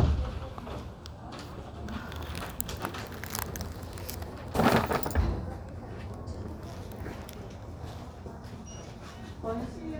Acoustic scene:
crowded indoor space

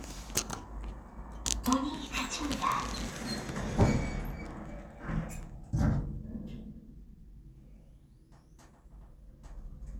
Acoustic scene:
elevator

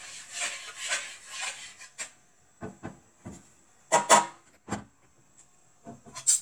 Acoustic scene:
kitchen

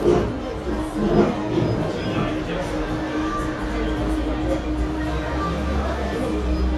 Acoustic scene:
cafe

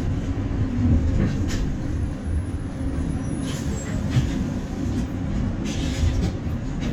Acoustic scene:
bus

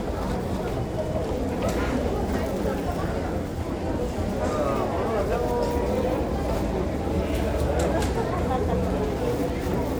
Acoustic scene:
crowded indoor space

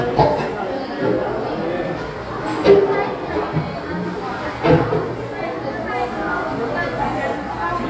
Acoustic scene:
cafe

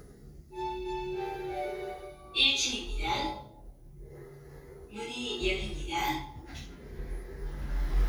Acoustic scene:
elevator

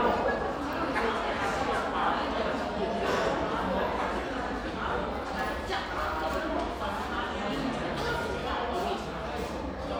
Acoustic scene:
crowded indoor space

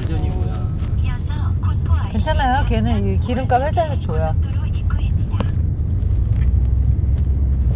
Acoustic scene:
car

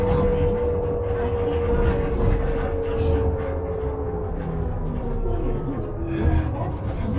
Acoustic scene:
bus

